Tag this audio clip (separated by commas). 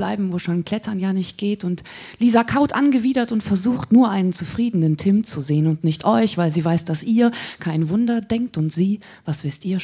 Speech